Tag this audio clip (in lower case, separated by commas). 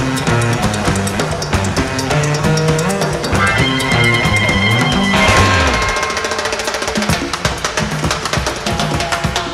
playing timbales